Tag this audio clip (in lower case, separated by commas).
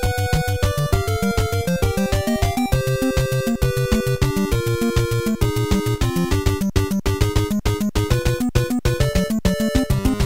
music